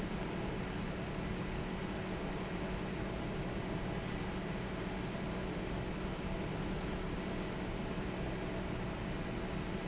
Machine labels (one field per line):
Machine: fan